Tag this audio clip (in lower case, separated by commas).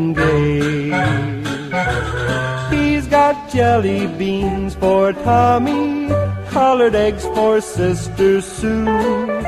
music